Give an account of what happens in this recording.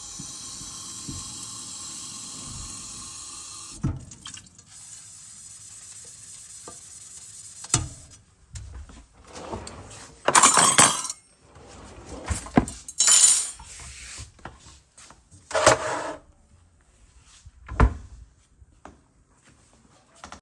I was doing the dishes and then put the dishes away in the cabinet.